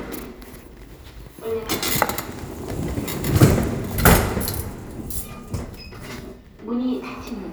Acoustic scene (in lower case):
elevator